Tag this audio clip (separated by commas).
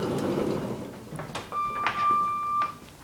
home sounds, Sliding door, Door